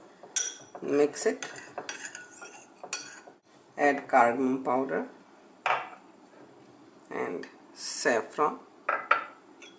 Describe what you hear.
A person speaking while interacting with dishes